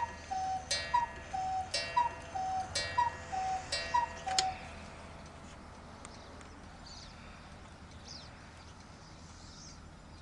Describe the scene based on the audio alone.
A coo coo clock coo coos